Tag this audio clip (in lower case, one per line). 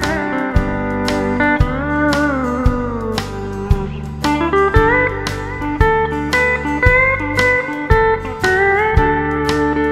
guitar
music
inside a small room
slide guitar